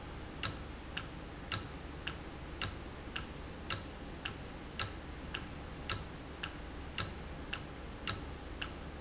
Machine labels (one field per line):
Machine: valve